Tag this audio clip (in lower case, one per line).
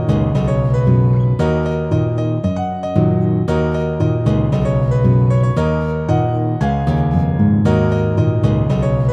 guitar
music
plucked string instrument
acoustic guitar
musical instrument
strum